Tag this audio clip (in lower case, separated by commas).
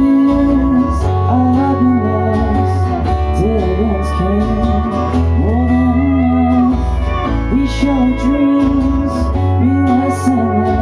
music